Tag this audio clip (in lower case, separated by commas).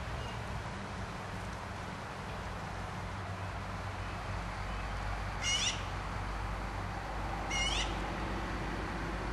magpie calling